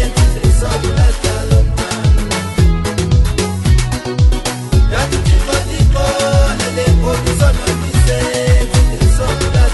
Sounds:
Music, Pop music

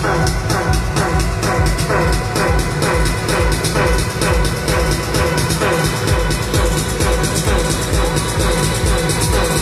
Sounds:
Music, House music

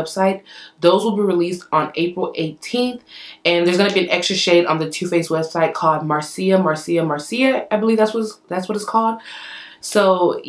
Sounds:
Speech

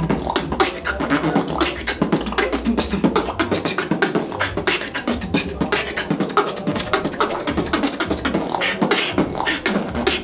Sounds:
Music, Beatboxing

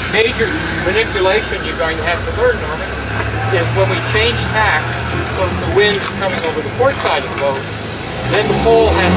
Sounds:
Vehicle, outside, rural or natural, Speech

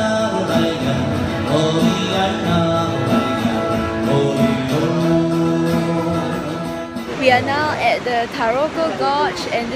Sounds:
Vocal music

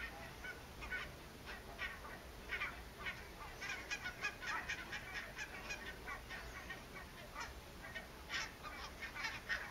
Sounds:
Honk, Fowl, Goose

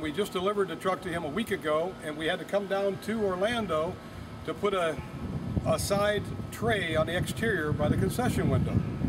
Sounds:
Speech

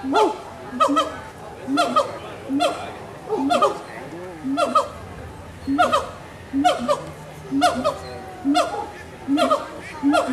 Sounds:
gibbon howling

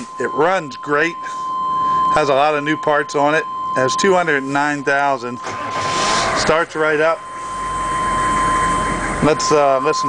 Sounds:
Speech, Vehicle

